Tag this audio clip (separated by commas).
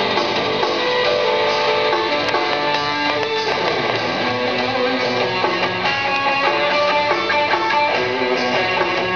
Plucked string instrument, Guitar, Musical instrument, Music